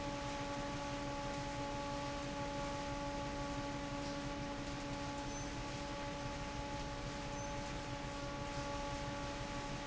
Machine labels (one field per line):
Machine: fan